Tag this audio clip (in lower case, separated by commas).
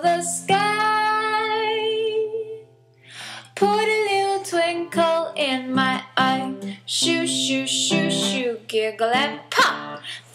music